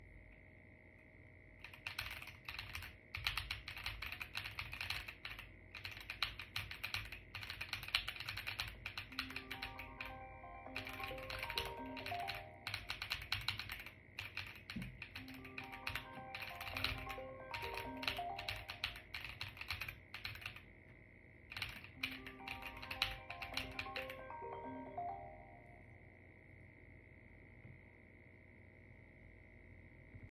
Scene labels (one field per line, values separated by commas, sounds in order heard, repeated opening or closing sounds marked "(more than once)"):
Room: office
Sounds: keyboard typing, phone ringing